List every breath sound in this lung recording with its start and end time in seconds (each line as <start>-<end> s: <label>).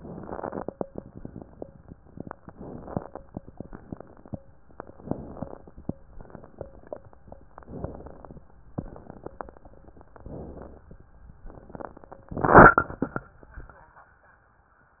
2.46-3.21 s: inhalation
2.46-3.21 s: crackles
3.49-4.39 s: exhalation
3.49-4.39 s: crackles
4.91-5.95 s: inhalation
4.91-5.95 s: crackles
6.18-7.38 s: exhalation
6.18-7.38 s: crackles
7.59-8.52 s: inhalation
7.59-8.52 s: crackles
8.75-9.75 s: exhalation
8.75-9.75 s: crackles
10.19-10.91 s: inhalation
11.52-12.26 s: exhalation
11.52-12.26 s: crackles